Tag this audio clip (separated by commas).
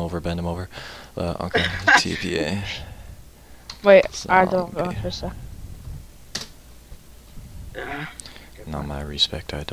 Speech